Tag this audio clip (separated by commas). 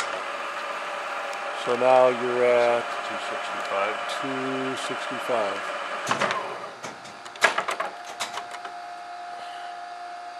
Speech, Tools